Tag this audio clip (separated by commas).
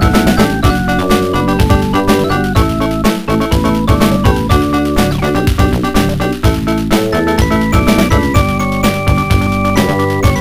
Music